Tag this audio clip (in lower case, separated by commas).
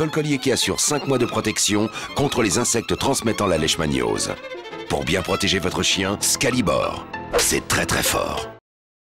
speech, music